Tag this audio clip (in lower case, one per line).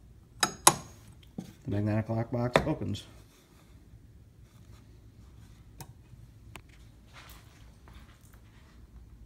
speech